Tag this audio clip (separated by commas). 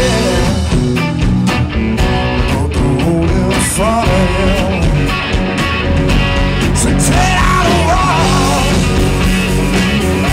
Rock music, Music